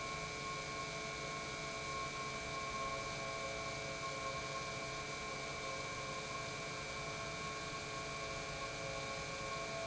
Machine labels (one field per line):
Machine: pump